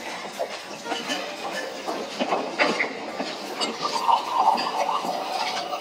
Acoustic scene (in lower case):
restaurant